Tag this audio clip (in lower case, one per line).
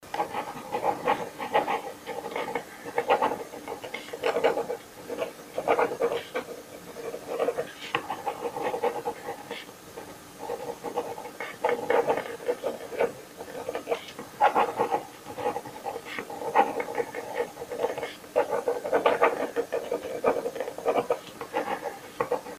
home sounds
writing